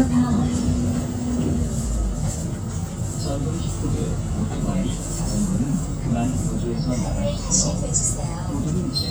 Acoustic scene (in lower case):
bus